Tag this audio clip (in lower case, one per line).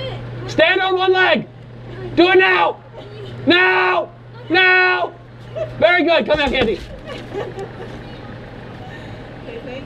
speech